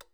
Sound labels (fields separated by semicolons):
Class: switch; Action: being turned on; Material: plastic